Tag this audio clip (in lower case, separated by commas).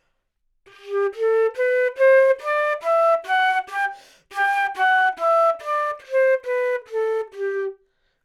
music, woodwind instrument, musical instrument